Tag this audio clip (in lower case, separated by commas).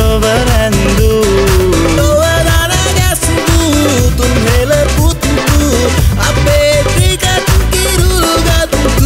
song, music of asia, music